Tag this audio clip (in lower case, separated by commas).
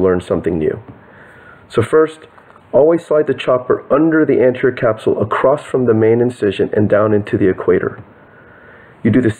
speech